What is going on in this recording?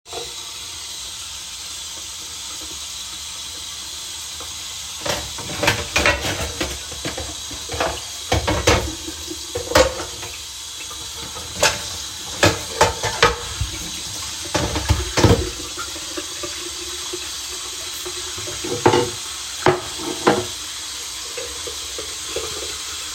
Water was running while I moved dishes in the sink.